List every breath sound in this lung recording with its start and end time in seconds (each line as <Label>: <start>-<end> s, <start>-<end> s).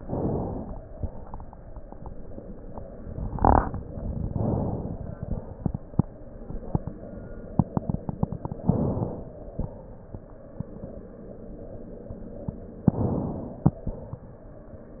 Inhalation: 0.00-0.94 s, 3.88-5.18 s, 8.54-9.29 s, 12.80-13.74 s
Exhalation: 0.92-1.91 s, 5.16-5.88 s, 9.30-10.55 s, 13.74-14.42 s
Crackles: 5.17-5.86 s, 8.52-9.27 s, 9.27-10.52 s, 13.64-14.39 s